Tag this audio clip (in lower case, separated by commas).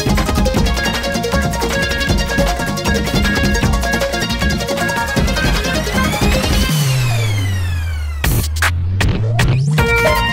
music, outside, urban or man-made